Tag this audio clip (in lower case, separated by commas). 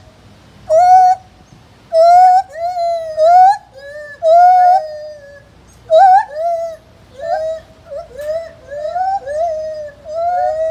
gibbon howling